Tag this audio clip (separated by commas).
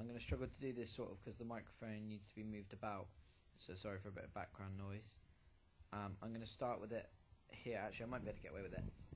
Speech